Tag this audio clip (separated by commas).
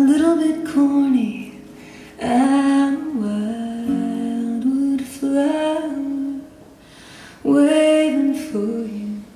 Music